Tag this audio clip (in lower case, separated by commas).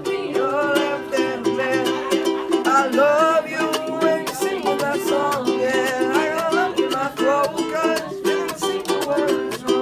playing ukulele